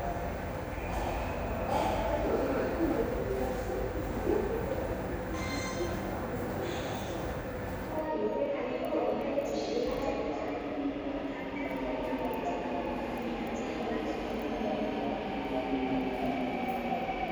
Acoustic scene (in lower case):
subway station